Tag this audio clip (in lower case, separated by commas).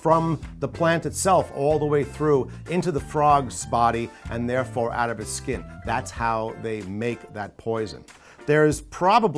music, speech